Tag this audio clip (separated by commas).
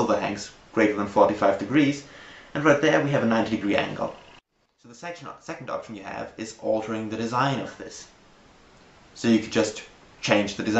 Speech